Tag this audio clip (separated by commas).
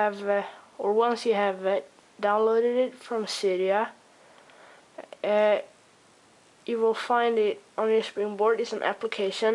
Speech